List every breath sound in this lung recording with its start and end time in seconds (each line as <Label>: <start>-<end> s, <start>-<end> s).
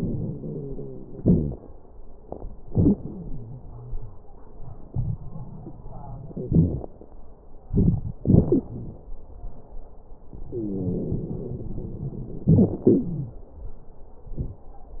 Inhalation: 0.00-1.19 s, 7.64-8.23 s, 10.50-12.42 s
Exhalation: 1.19-1.55 s, 8.18-9.04 s, 12.48-13.40 s
Wheeze: 0.00-1.16 s, 1.19-1.55 s, 2.92-4.26 s, 6.32-6.91 s, 10.50-12.42 s, 13.08-13.40 s
Crackles: 7.63-8.21 s, 8.23-9.09 s